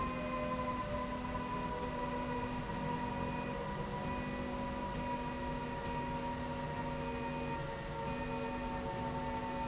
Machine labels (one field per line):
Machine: slide rail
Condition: normal